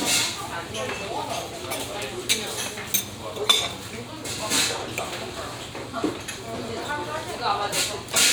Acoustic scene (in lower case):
restaurant